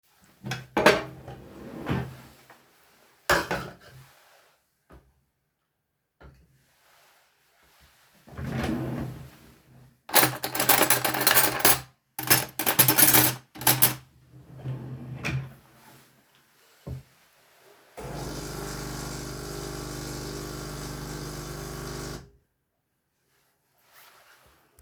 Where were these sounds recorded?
kitchen